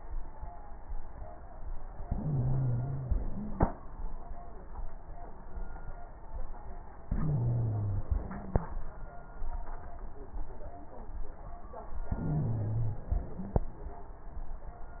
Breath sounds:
Inhalation: 1.99-3.66 s, 7.13-8.70 s, 12.12-13.70 s
Wheeze: 2.16-3.11 s, 7.13-8.70 s, 12.12-13.08 s

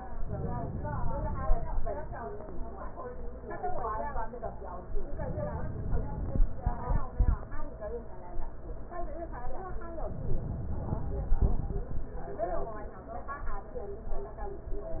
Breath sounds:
Inhalation: 0.21-1.88 s, 5.07-6.68 s, 10.03-11.64 s

